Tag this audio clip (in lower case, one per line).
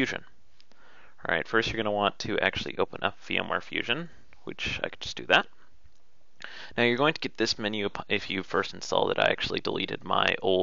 speech